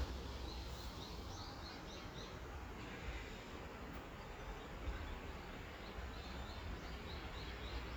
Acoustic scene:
park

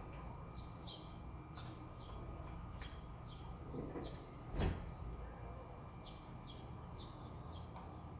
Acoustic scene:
residential area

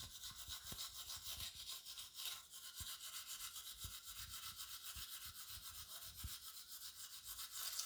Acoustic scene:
restroom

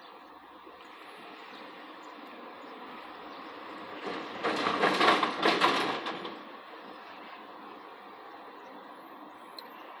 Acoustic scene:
residential area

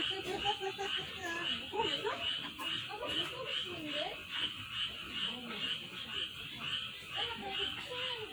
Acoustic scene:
park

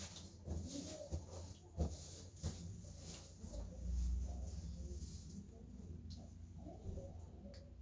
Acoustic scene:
restroom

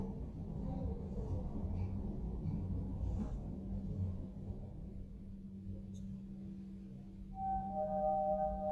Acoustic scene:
elevator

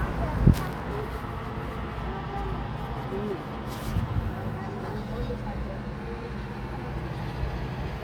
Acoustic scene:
residential area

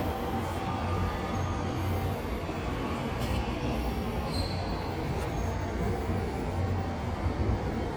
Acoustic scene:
subway station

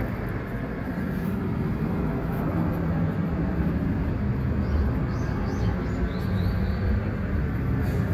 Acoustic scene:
street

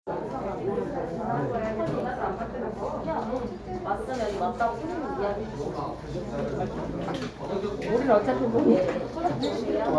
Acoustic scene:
crowded indoor space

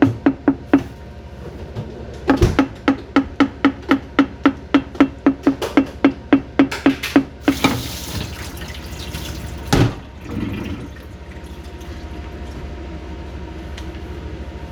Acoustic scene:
kitchen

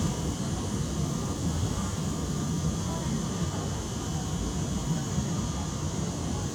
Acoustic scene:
subway train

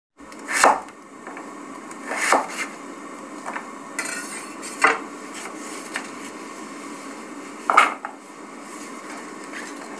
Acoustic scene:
kitchen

